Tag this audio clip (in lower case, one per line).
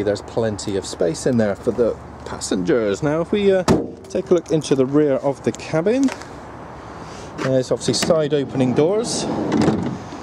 vehicle